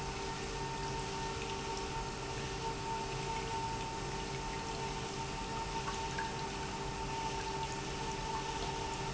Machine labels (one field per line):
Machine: pump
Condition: normal